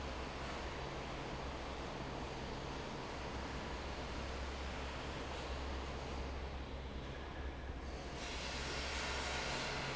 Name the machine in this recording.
fan